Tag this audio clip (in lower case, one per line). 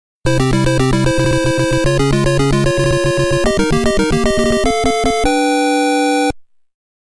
music